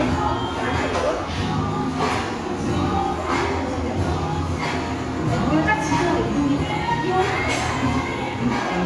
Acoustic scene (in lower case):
crowded indoor space